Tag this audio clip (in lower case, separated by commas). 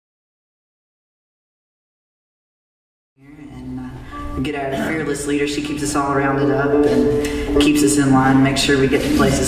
speech, music